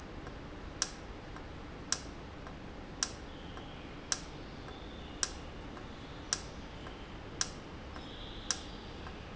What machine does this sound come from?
valve